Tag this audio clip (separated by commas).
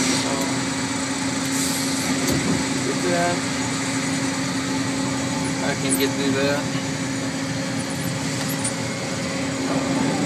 Speech